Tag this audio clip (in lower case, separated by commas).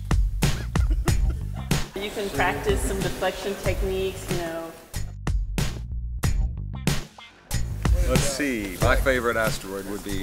music, speech